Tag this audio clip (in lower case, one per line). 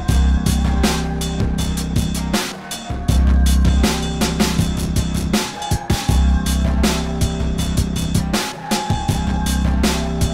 soundtrack music
music